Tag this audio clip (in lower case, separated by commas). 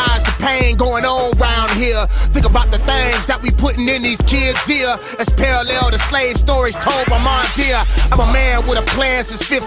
blues, music